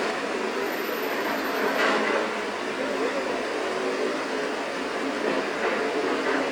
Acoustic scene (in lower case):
street